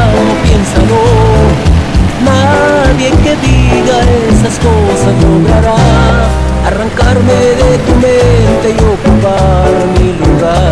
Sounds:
vehicle
bus
music

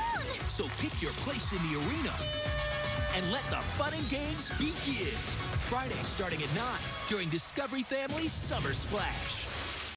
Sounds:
music
speech

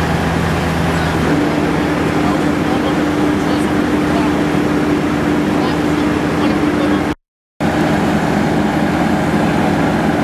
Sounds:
speech

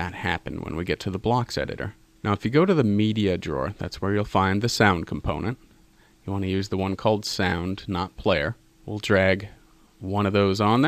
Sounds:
speech

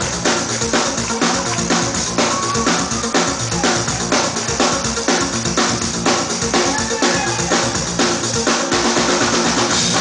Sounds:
music

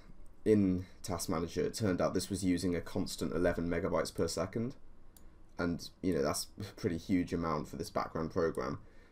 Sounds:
speech

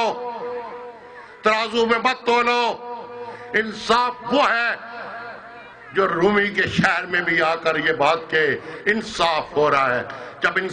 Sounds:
speech
male speech
narration

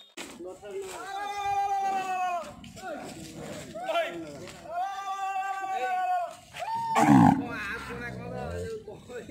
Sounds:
bull bellowing

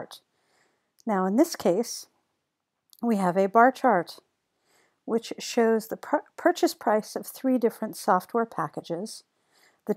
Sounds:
speech

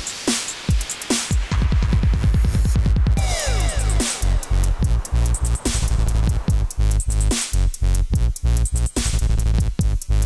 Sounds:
music
dubstep
electronic music

